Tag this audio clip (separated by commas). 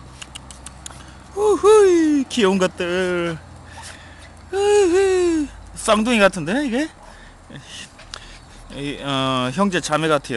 Speech